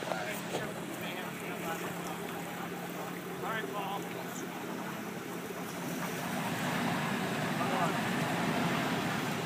Some people milling and talking in the background while a water feature bubbles away and some machinery is started